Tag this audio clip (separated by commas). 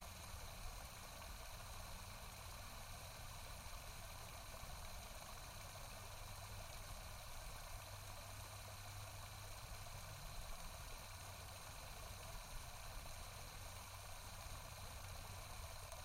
Stream, Water